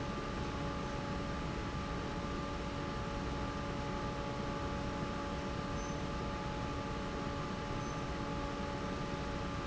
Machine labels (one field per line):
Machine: fan